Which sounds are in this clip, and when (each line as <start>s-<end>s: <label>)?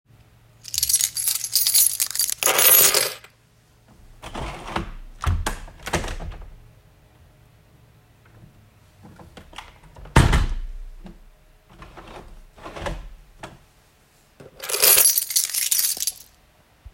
0.3s-3.7s: keys
4.2s-6.9s: window
9.1s-13.8s: window
14.4s-16.5s: keys